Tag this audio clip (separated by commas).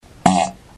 Fart